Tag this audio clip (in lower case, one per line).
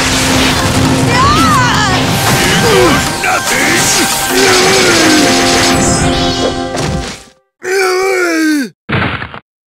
speech
music